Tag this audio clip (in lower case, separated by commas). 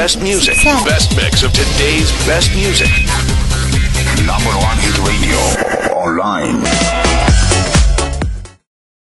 music, speech, soundtrack music